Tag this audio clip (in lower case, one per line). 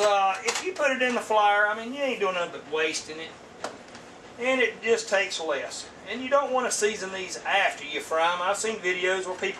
speech